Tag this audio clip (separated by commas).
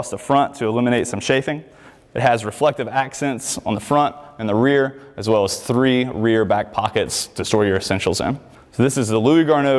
Speech